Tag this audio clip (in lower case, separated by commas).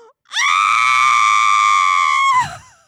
sobbing, screaming, human voice